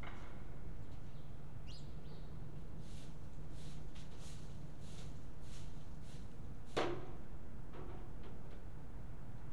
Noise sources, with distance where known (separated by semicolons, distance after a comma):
non-machinery impact, near